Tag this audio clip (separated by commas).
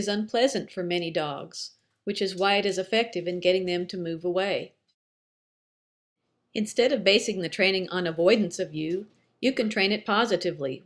Speech